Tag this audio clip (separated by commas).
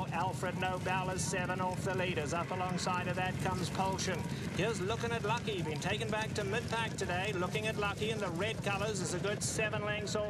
Speech